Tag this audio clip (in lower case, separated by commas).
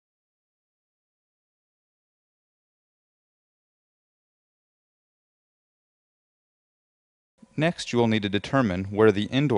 speech